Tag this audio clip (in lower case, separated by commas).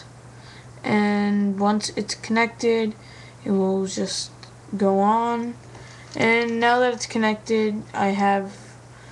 speech